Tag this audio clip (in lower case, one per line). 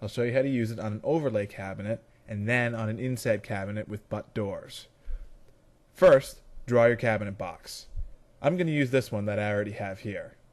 speech